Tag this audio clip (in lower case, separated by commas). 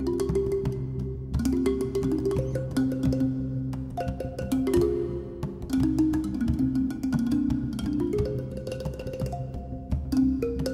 music